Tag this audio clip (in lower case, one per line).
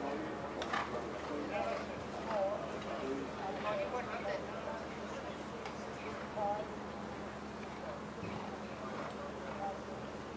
speech
clip-clop